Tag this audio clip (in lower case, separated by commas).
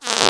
fart